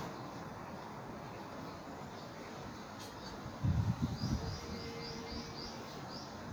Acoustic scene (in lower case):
park